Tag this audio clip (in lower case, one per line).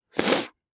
respiratory sounds